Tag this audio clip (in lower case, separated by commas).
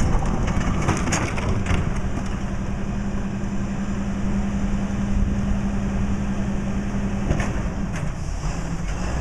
vehicle